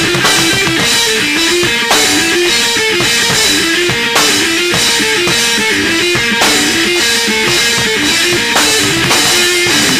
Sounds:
Music

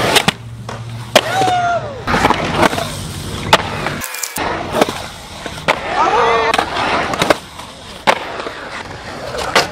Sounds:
skateboarding, Skateboard, Speech

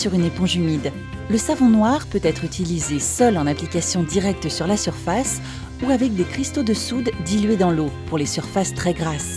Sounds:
Speech, Music

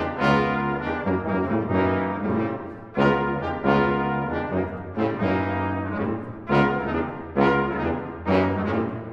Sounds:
French horn, Brass instrument, Music, Trombone, playing french horn

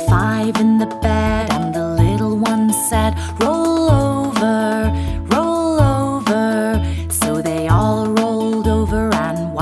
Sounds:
Song, Music for children, Music

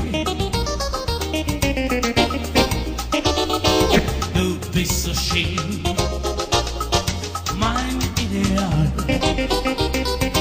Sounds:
Blues, Music

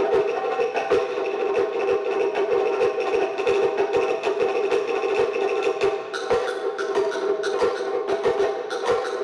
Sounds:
Wood block, Music

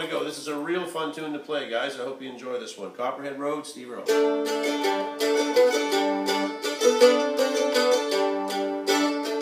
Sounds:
playing mandolin

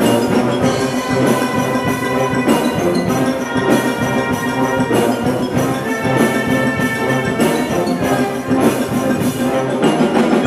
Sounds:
Orchestra, Music

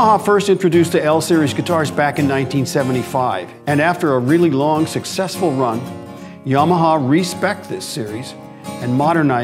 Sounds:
Guitar, Plucked string instrument, Music, Speech, Musical instrument, Acoustic guitar

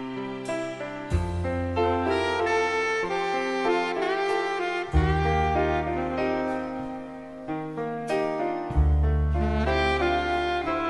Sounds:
Music

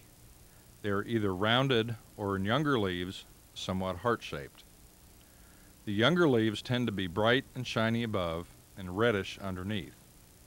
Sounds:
Speech

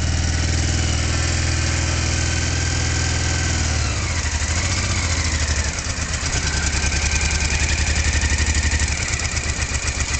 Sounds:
Vehicle, vroom

